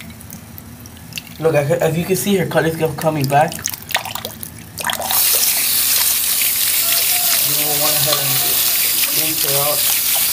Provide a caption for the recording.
Water running from a tap while a man speaks ending in a light scrubbing